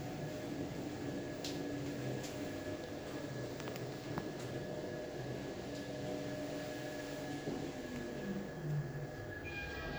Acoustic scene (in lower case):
elevator